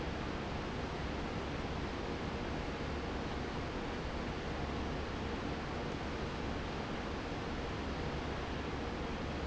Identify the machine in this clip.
fan